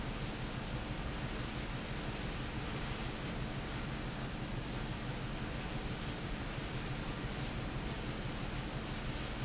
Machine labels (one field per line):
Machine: fan